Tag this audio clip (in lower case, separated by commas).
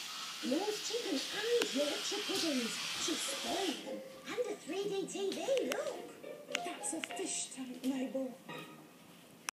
speech, music